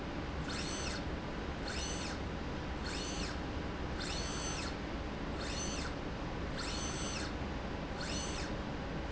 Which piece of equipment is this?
slide rail